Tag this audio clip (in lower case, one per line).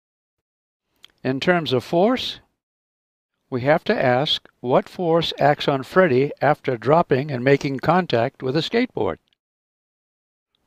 speech